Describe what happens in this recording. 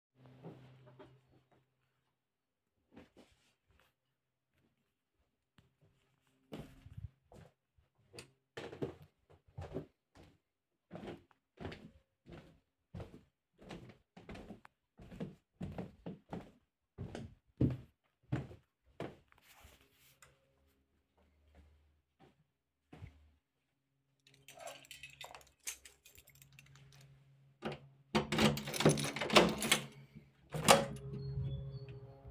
I wakled downstairs from bedroom. Automatic lights turned on. I took the keys, opened the door heard birds sounds and walked out.